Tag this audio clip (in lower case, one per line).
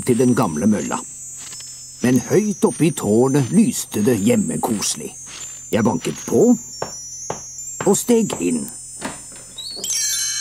speech